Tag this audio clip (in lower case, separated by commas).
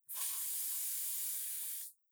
hiss